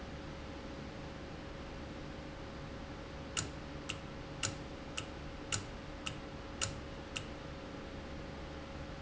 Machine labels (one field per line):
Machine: valve